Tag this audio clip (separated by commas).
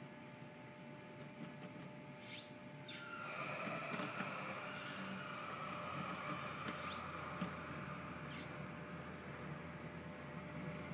Music